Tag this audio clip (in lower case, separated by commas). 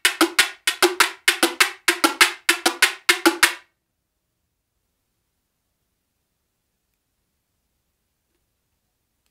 playing guiro